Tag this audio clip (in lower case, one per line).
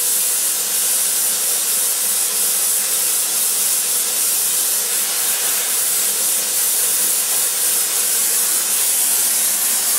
spray